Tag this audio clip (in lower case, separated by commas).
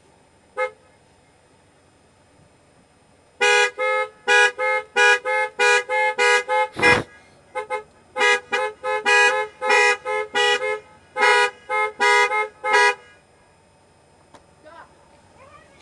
motor vehicle (road), vehicle, honking, alarm, car